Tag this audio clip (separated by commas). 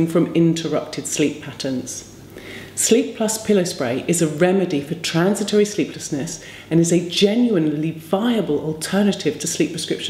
Speech